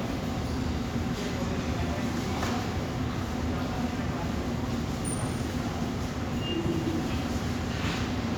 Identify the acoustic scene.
subway station